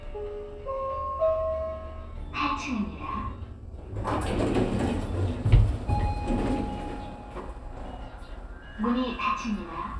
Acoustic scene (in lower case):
elevator